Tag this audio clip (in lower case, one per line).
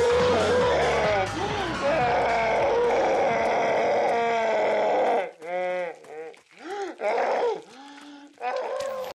animal